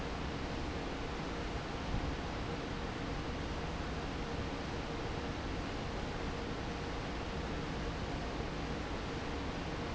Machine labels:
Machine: fan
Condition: normal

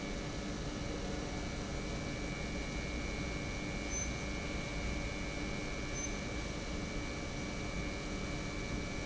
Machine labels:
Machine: pump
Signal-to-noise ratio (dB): -6 dB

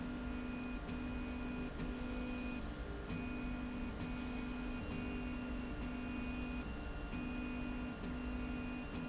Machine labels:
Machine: slide rail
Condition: normal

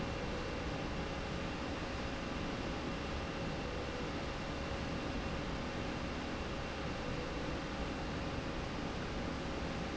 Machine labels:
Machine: slide rail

